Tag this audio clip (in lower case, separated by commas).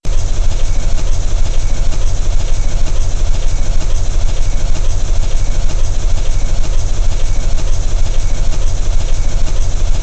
engine